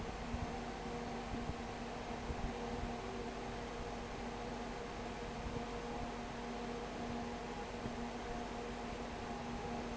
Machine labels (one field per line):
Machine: fan